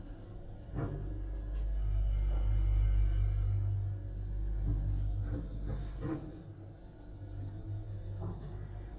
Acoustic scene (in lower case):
elevator